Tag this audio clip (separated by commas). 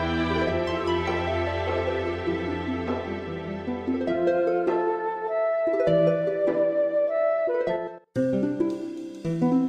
Music